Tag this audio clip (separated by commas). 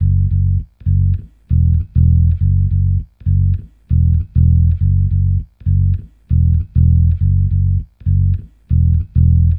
Music, Guitar, Musical instrument, Bass guitar, Plucked string instrument